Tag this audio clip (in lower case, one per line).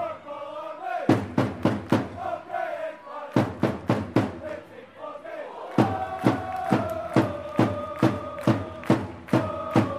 music
mantra